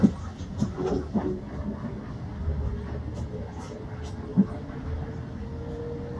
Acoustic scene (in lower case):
bus